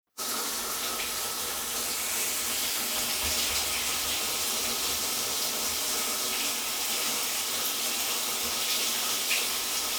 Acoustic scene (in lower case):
restroom